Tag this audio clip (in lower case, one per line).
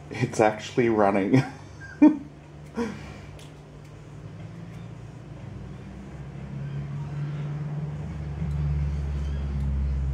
speech
inside a small room